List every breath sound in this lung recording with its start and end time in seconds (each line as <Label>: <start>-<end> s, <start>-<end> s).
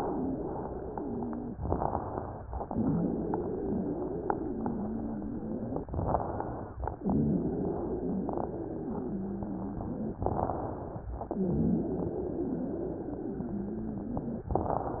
Inhalation: 1.57-2.43 s, 5.88-6.74 s, 10.21-11.06 s
Exhalation: 0.00-1.52 s, 2.66-5.83 s, 7.04-10.21 s, 11.31-14.48 s
Wheeze: 0.00-1.52 s, 2.66-5.83 s, 7.04-10.21 s, 11.31-14.48 s
Crackles: 1.57-2.43 s, 5.88-6.74 s, 10.21-11.06 s